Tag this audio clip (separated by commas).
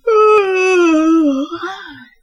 Human voice